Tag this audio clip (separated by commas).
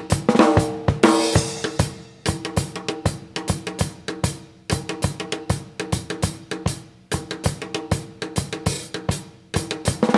Drum roll, Drum kit, Bass drum, Rimshot, Drum, Percussion, Snare drum